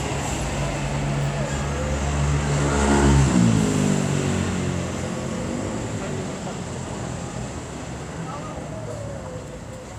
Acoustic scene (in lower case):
street